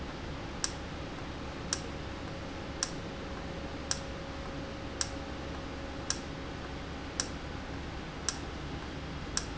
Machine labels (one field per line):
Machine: valve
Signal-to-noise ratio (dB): -6 dB